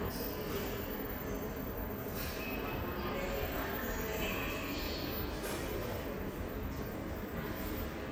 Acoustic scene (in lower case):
subway station